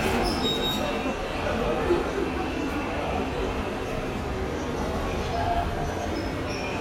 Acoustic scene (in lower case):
subway station